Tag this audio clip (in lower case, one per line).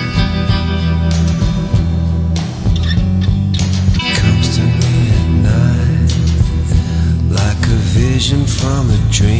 music
singing
inside a large room or hall